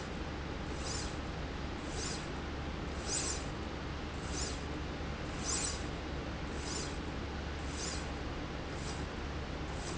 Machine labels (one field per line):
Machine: slide rail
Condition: normal